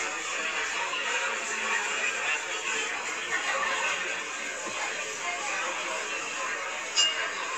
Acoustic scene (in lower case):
crowded indoor space